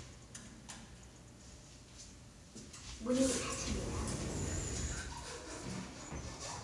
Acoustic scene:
elevator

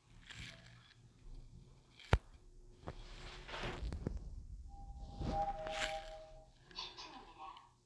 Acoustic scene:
elevator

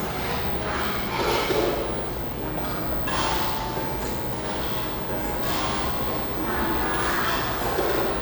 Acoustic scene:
cafe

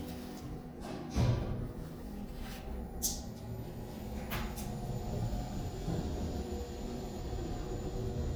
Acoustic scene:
elevator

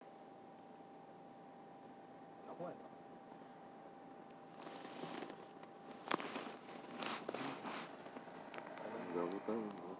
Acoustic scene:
car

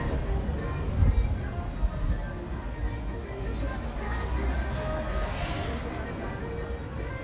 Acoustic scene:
street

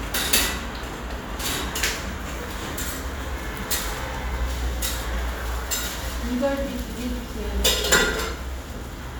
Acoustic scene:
cafe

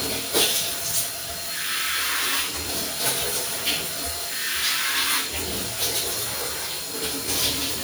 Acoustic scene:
restroom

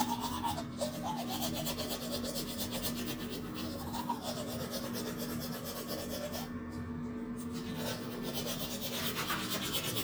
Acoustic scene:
restroom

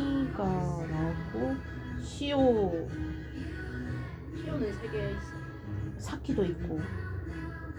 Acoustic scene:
cafe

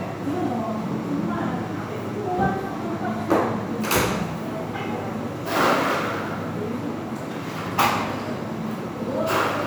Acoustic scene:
crowded indoor space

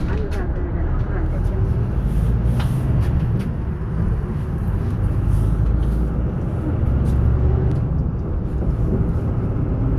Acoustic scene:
bus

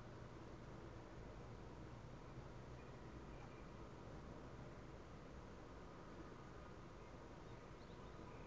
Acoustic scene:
park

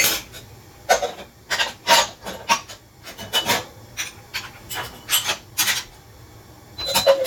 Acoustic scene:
kitchen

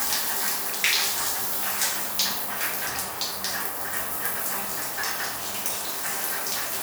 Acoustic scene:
restroom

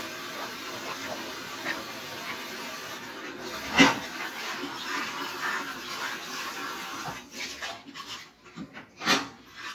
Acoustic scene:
kitchen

